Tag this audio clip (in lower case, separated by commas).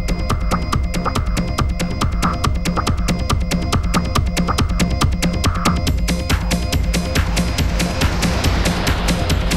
techno, electronica, electronic music, music, house music, trance music